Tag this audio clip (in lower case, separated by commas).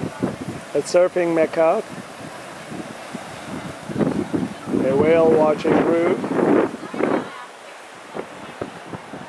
wind, wind noise (microphone)